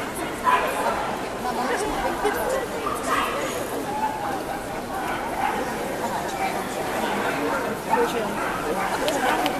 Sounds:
speech, dog, pets

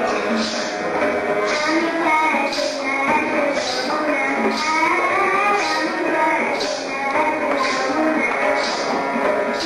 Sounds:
music, child singing

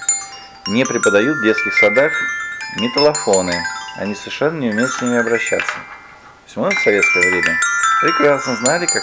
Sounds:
playing glockenspiel

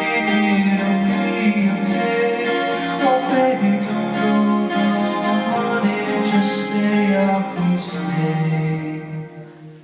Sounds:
music, acoustic guitar, guitar

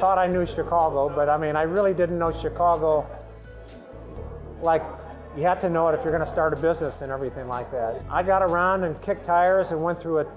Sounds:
speech, music

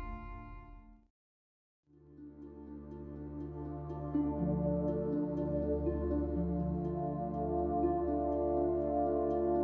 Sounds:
new-age music

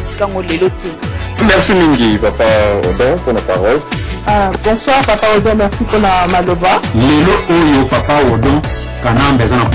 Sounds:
speech, music

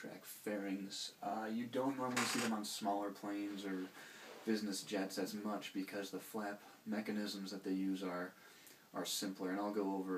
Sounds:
speech

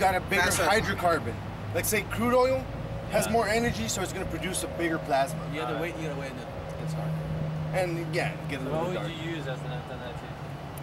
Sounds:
medium engine (mid frequency), vehicle, speech

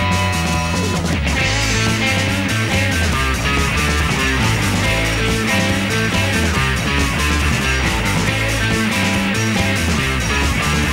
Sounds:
musical instrument, music, guitar, bass guitar

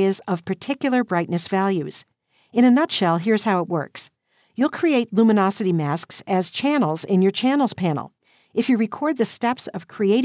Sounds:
speech

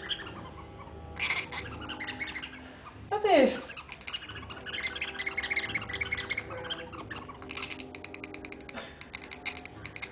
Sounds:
speech

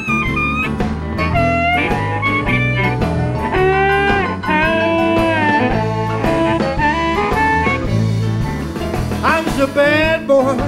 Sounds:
music, musical instrument, harmonica

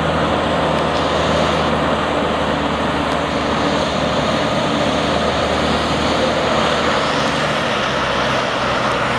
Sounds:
truck, vehicle

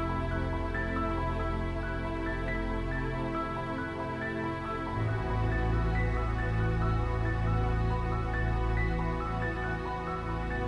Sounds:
music

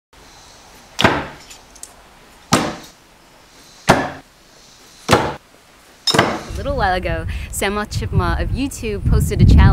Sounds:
speech, outside, rural or natural

